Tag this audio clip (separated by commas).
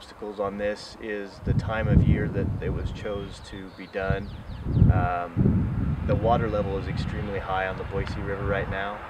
Speech